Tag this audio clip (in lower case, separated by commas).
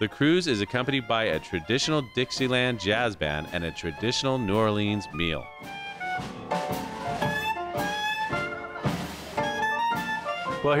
music, speech